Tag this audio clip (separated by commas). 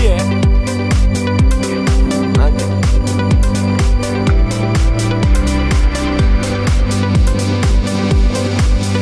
Speech, Music